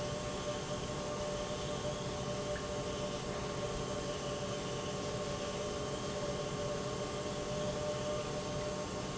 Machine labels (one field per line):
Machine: pump